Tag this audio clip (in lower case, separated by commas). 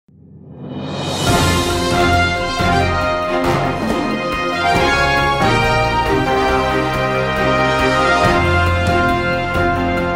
music, theme music